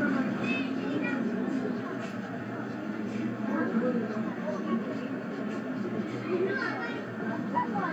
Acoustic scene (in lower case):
residential area